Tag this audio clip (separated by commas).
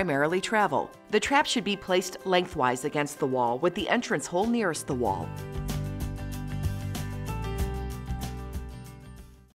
Speech, Music